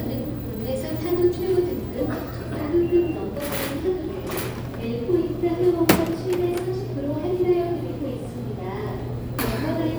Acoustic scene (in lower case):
crowded indoor space